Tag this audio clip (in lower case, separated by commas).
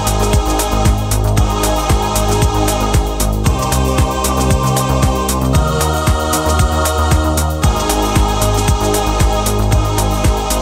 music